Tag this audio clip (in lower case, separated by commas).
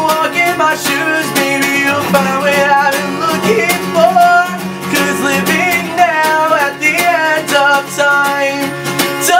music